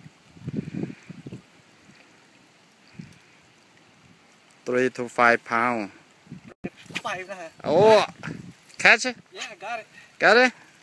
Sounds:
outside, rural or natural, Speech

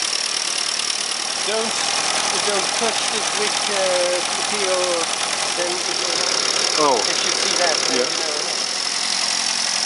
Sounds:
Speech

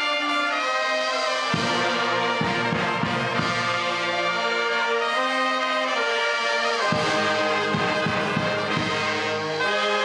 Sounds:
Music, Music of Latin America

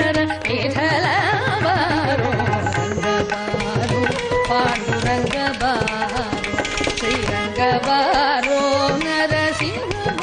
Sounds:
Music, Tabla, Carnatic music, Classical music

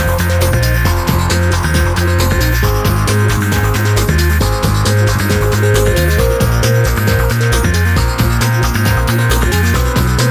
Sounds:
Music

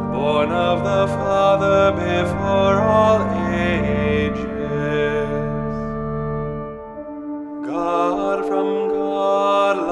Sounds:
Music

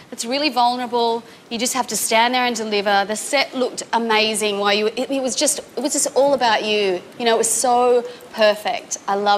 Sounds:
woman speaking

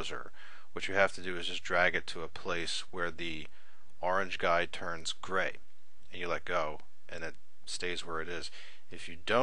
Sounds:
Speech

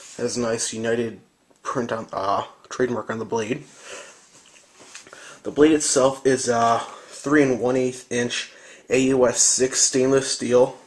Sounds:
Speech

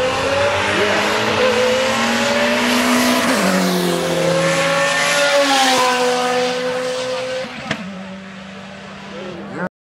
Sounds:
Speech

